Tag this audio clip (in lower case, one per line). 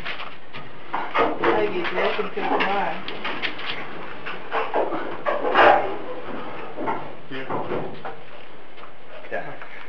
speech